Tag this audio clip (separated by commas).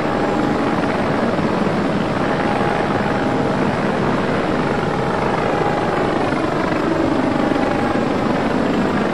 outside, rural or natural, Vehicle, Helicopter